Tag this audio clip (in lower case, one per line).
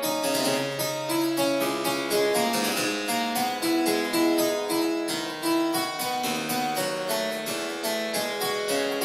playing harpsichord